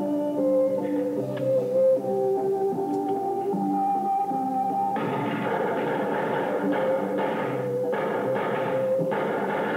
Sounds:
Music, mastication

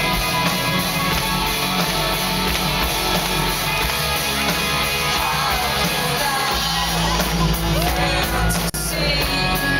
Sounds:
Music

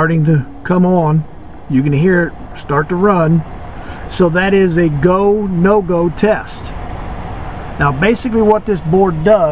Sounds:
Speech

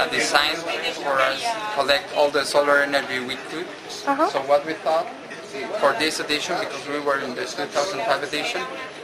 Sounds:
Speech, inside a public space

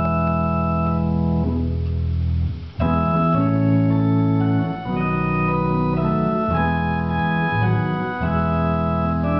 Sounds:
Organ, Hammond organ, playing hammond organ

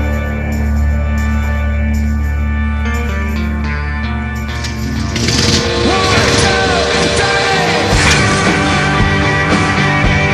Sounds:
Vehicle, Motorcycle, Psychedelic rock, Music, Rock music

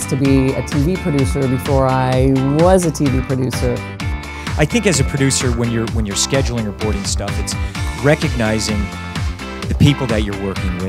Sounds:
Speech, Music

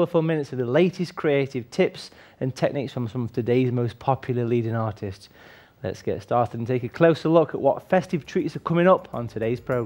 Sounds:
Speech, Music

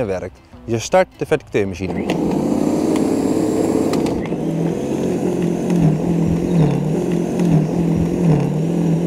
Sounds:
Speech

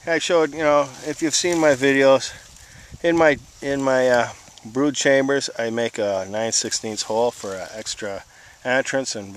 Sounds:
Speech

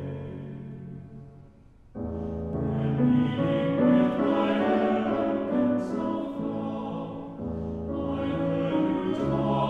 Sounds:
Music

